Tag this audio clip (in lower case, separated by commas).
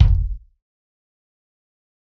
percussion, bass drum, music, musical instrument, drum